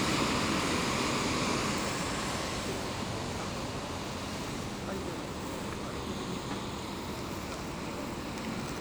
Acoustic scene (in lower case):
street